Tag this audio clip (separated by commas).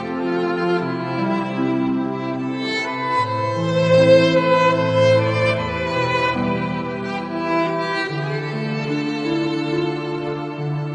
Music, fiddle, Musical instrument